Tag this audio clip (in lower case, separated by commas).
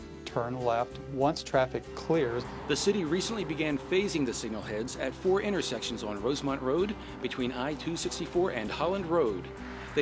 music, speech